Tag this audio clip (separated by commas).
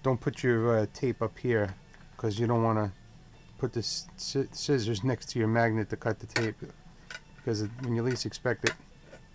Music, Speech